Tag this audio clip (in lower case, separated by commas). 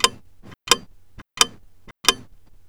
tick-tock, mechanisms, clock